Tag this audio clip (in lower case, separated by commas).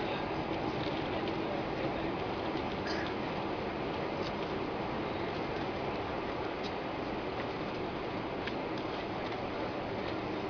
vehicle